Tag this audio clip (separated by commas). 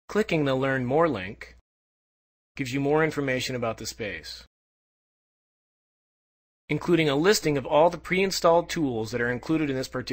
Speech